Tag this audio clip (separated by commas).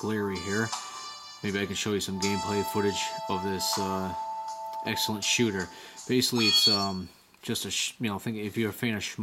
Music, Speech